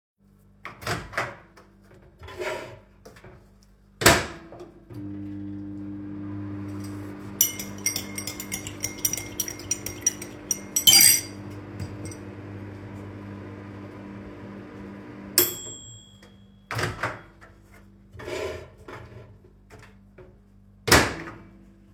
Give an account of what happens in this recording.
I’ve put something in the microwave. While I was waiting I was stirring my tea and when the microwave was finished I took my food out.